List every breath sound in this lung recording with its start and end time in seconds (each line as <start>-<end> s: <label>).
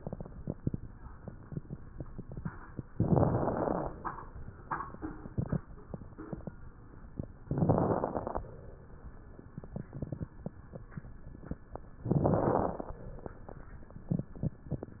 2.98-3.97 s: inhalation
2.98-3.97 s: crackles
7.46-8.45 s: inhalation
7.46-8.45 s: crackles
12.05-13.04 s: inhalation
12.05-13.04 s: crackles